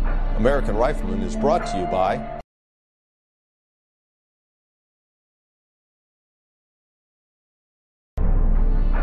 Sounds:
speech, music

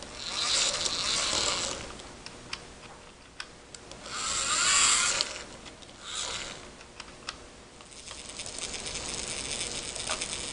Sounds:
inside a small room

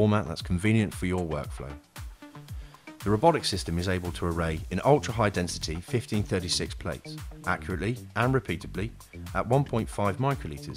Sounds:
music, speech

